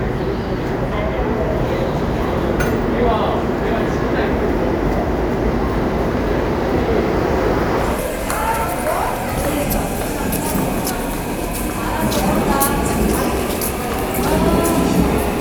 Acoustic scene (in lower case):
subway station